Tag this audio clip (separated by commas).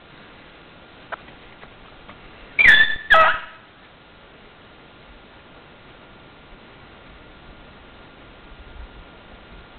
Animal, Dog, pets